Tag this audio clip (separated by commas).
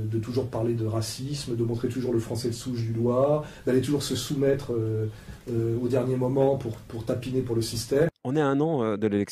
Speech